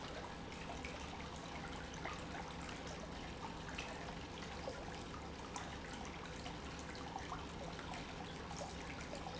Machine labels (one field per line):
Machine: pump